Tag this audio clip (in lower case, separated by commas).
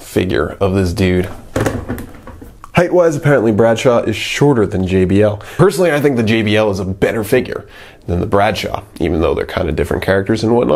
speech